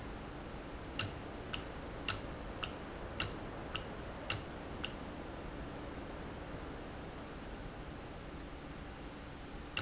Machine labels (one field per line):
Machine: valve